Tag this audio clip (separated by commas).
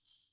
Music, Percussion, Musical instrument, Rattle (instrument)